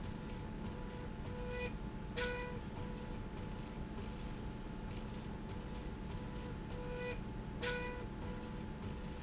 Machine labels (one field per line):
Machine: slide rail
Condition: normal